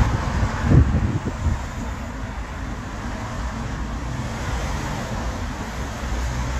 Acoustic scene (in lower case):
street